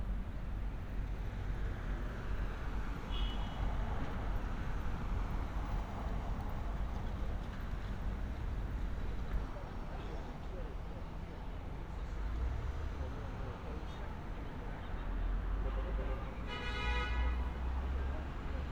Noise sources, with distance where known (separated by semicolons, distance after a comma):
medium-sounding engine; car horn